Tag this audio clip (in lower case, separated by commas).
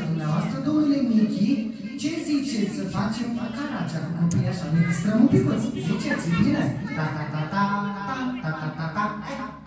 speech